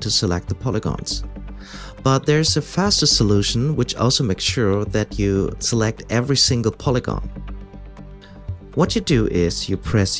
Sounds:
Music, Speech

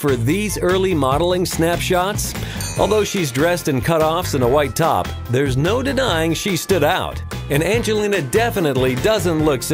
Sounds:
Music, Speech

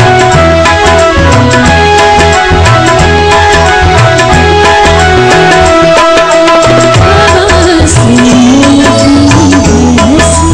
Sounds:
Female singing, Music

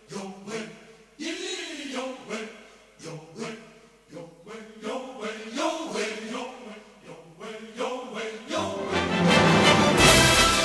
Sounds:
Music

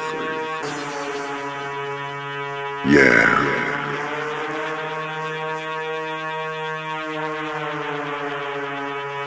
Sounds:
Music

